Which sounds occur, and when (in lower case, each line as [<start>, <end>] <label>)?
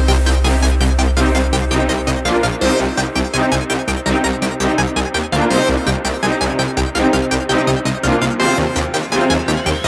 [0.00, 9.85] music
[9.38, 9.85] sound effect